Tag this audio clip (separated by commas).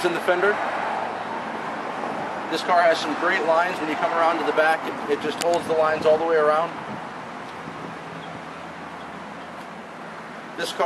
Speech